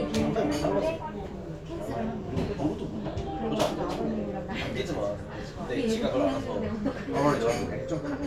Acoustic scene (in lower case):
crowded indoor space